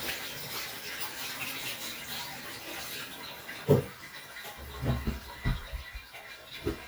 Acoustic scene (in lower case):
restroom